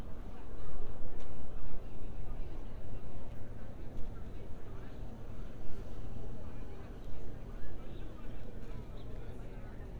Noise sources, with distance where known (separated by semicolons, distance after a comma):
person or small group talking